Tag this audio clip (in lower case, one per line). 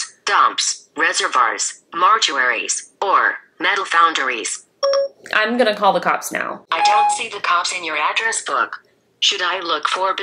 speech
inside a small room